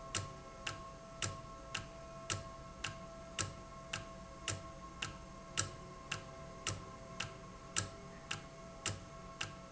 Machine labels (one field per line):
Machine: valve